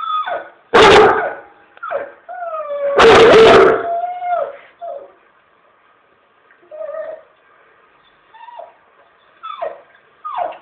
A dog is whimpering and another dog is barking fiercely